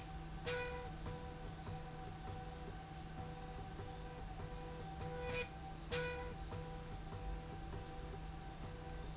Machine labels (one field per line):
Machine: slide rail